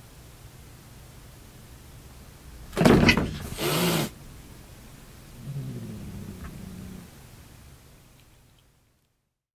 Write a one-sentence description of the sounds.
A large bang followed by a cat hiss and growl